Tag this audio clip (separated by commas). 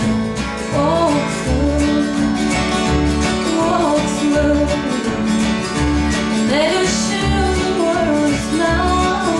Music